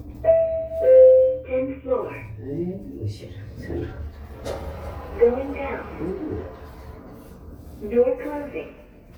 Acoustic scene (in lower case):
elevator